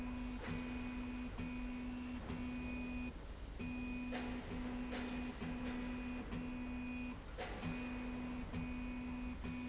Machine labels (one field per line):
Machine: slide rail